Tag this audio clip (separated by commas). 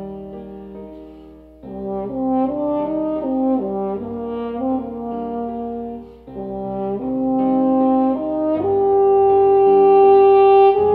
French horn, Brass instrument